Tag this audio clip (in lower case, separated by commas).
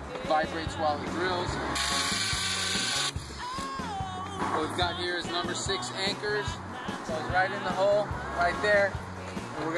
music, outside, urban or man-made, speech